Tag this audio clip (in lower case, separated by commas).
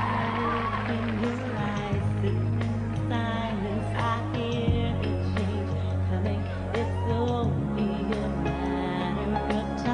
music, singing